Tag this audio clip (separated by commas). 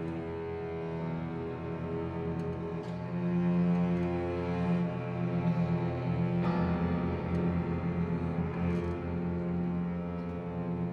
Scary music, Music